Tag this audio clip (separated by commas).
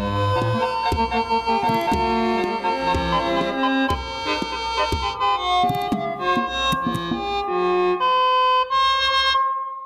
Music, Sampler